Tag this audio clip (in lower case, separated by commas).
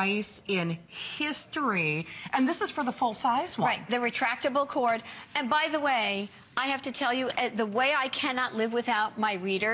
speech